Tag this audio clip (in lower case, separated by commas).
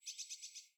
animal, bird, wild animals